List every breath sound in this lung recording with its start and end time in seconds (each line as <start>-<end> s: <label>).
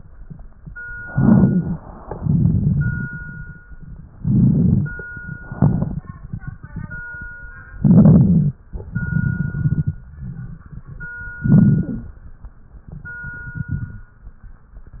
1.06-1.84 s: inhalation
1.06-1.84 s: crackles
2.11-3.57 s: exhalation
2.11-3.57 s: crackles
4.06-5.03 s: inhalation
4.06-5.03 s: crackles
5.41-6.15 s: exhalation
5.41-6.15 s: crackles
7.76-8.60 s: inhalation
7.76-8.60 s: crackles
8.75-10.02 s: exhalation
8.75-10.02 s: crackles
11.40-12.16 s: inhalation
11.40-12.16 s: crackles
12.88-14.10 s: exhalation
12.88-14.10 s: crackles